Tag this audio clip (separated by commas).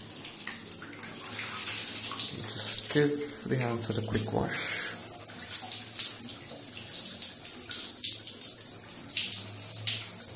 Water